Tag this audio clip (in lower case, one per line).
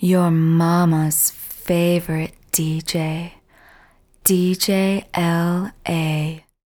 human voice
speech
woman speaking